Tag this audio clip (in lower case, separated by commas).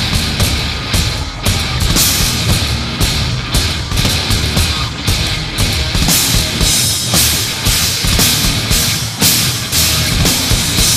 disco, music